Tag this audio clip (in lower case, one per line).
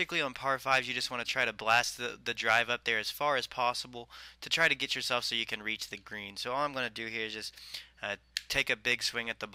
speech